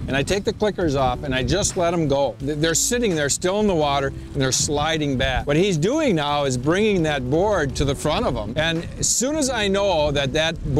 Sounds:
speech

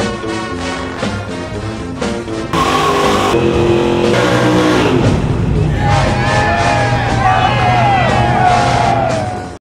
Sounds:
car passing by

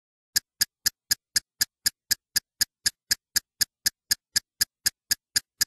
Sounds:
tick

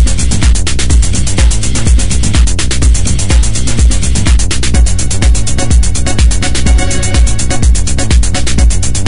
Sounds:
music

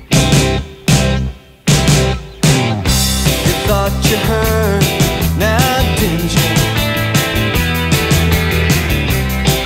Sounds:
music

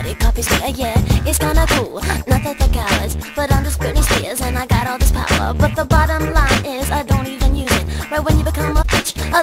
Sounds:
music
soundtrack music

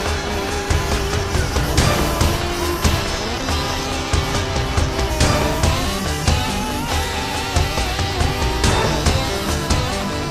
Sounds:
music

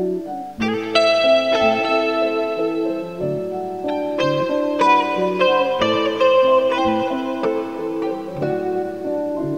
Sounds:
music

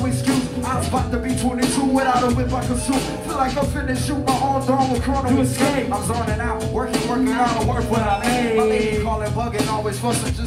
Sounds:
music

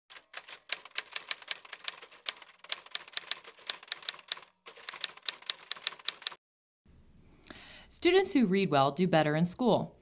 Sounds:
speech

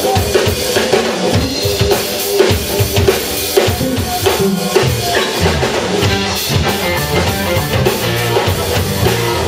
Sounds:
funk
rhythm and blues
speech
music

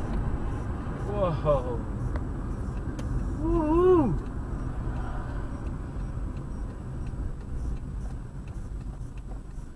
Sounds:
car
speech
vehicle

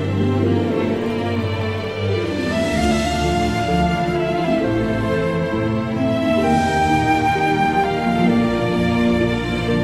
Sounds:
music
sad music

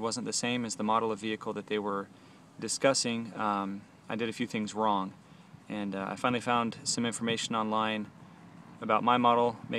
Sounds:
speech

